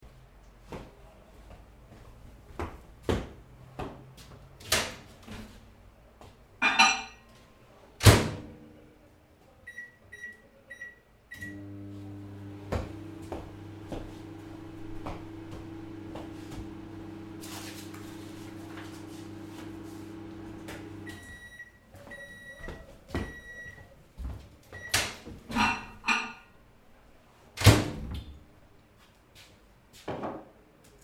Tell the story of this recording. I came to the microwave with loud footsteps, as if I was hopping, opened the microwave, put a mug in there, and turned it on in the light mode. Then I came to the table, looked at the paper. Finally, the microwave started beeping, and I left the paper and came up to open it, taking out the mug.